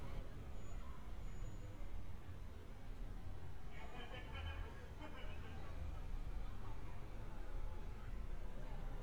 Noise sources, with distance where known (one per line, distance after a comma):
unidentified human voice